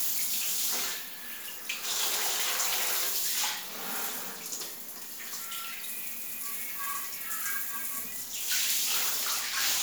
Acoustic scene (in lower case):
restroom